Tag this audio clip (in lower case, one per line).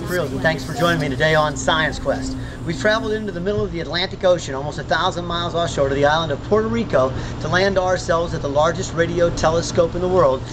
speech